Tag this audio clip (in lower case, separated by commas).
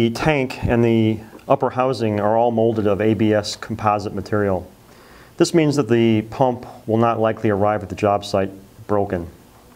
speech